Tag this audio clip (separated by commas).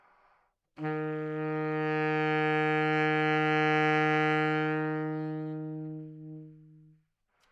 Music, Musical instrument, Wind instrument